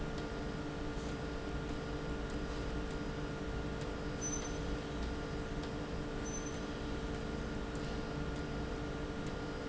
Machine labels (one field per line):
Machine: slide rail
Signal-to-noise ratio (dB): -6 dB